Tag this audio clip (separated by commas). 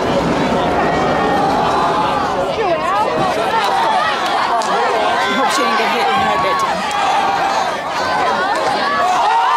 Speech